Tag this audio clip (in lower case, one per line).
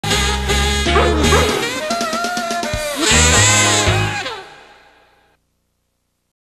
music